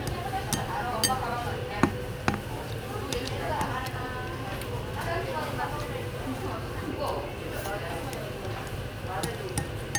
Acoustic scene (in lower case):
restaurant